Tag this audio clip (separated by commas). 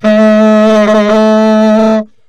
woodwind instrument, Music, Musical instrument